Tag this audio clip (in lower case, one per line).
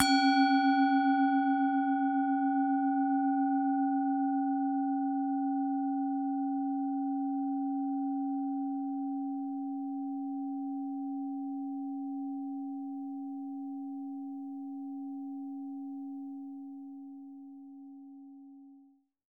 music
musical instrument